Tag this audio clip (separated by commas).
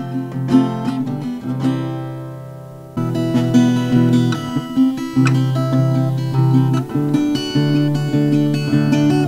Music, Acoustic guitar